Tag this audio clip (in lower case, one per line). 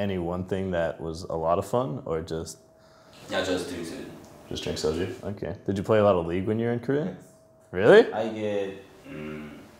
speech